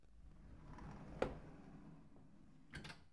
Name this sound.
wooden door opening